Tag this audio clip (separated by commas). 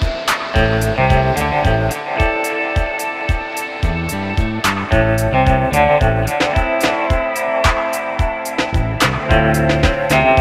Music